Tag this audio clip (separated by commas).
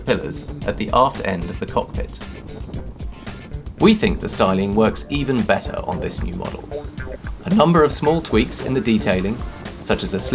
Music, Speech